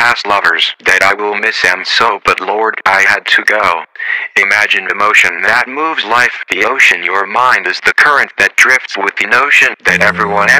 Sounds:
Speech

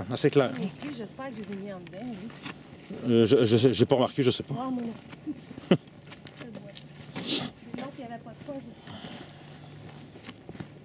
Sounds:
Speech

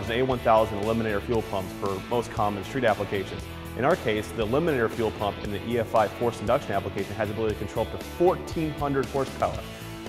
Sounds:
Music, Speech

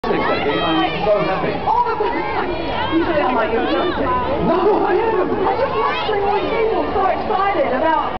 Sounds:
Speech

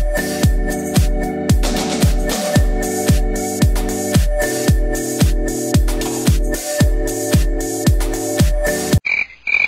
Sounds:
Music

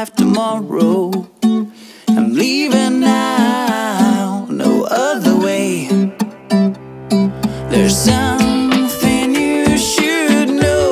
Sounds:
Music

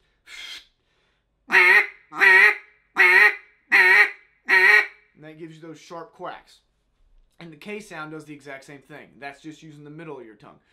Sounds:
duck quacking

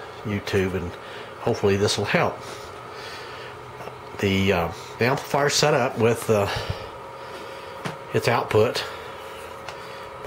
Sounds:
Speech

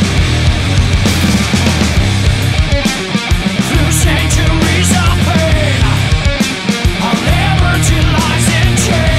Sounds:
Music

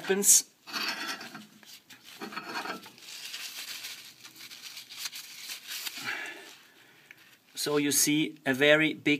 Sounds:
Speech

